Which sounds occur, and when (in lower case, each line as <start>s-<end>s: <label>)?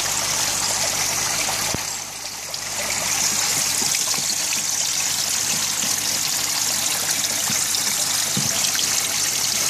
0.0s-9.6s: mechanisms
0.0s-9.6s: dribble